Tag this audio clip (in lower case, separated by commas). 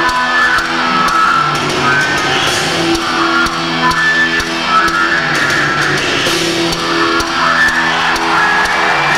music